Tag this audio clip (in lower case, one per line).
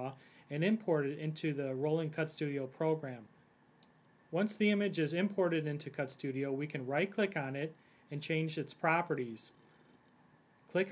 speech